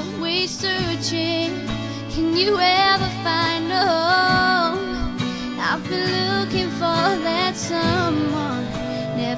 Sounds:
female singing
music

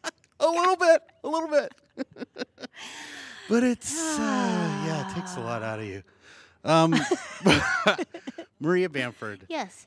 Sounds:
speech

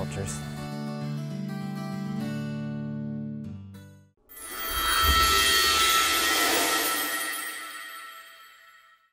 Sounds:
speech
music

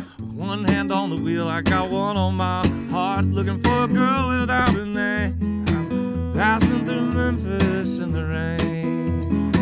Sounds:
music

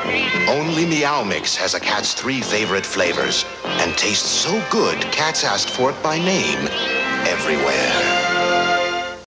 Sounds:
meow
domestic animals
music
speech
cat
animal

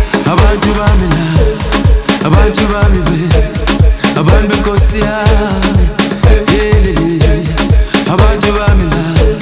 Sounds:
music

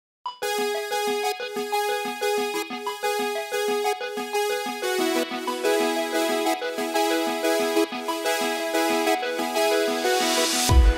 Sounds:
music

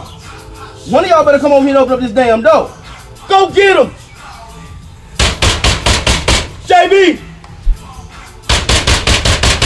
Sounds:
music
knock
speech

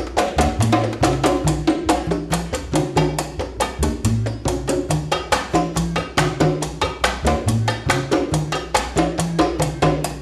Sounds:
playing timbales

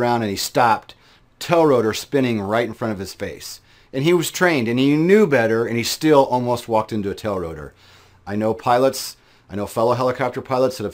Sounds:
speech

